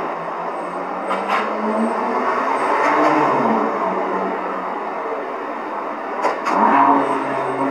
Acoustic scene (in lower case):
street